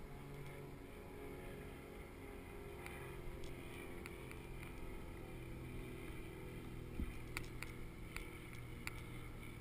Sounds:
vehicle

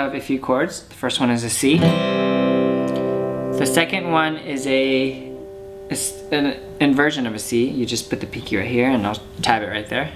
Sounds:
music, musical instrument, plucked string instrument, guitar, speech, strum, acoustic guitar

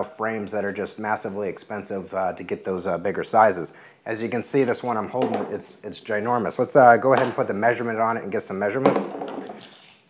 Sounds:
speech

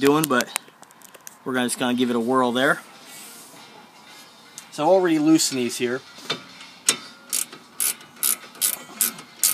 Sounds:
speech, music

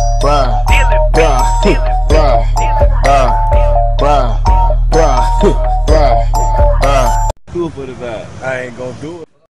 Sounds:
speech, music

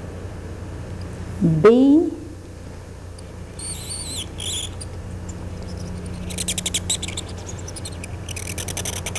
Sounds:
scrape, writing, speech

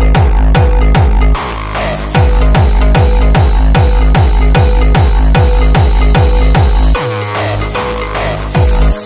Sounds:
music

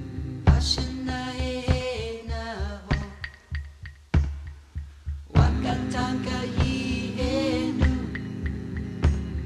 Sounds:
singing, music

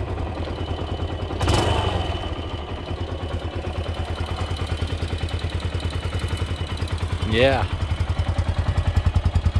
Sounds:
vehicle, speech, engine, revving, idling, medium engine (mid frequency)

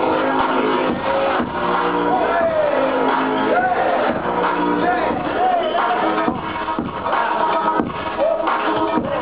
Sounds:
music

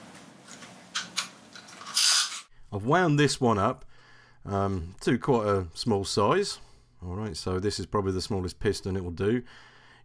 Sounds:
speech

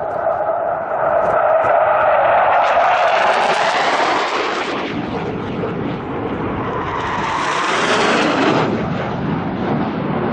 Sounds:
airplane flyby

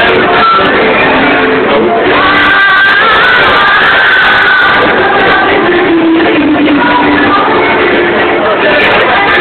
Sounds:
female singing, music

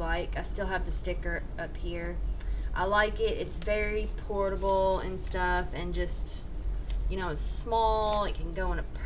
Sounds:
speech

